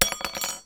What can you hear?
metal object falling